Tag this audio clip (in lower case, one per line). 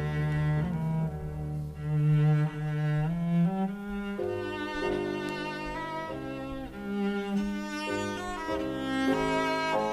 musical instrument
music
cello